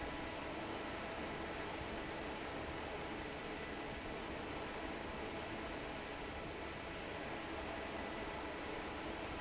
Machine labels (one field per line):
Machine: fan